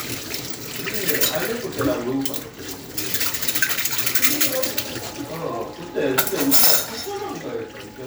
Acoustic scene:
kitchen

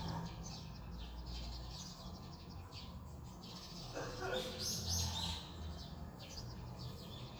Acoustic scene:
residential area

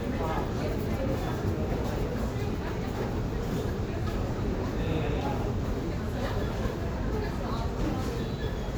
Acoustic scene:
subway station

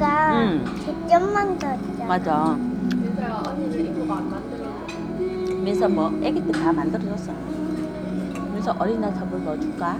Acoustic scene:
restaurant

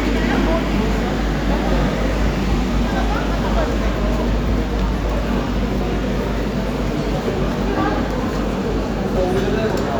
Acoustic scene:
crowded indoor space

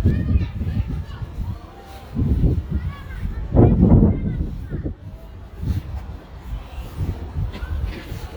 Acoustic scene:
residential area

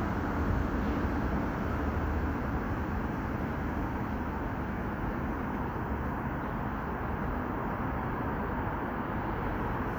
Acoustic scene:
street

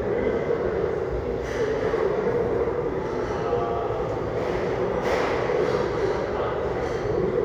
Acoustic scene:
restaurant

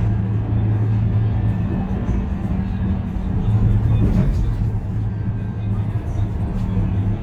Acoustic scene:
bus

